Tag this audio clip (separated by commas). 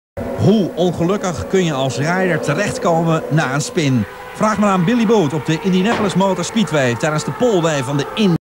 Vehicle, Speech